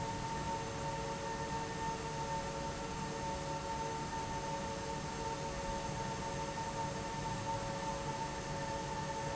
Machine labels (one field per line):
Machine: fan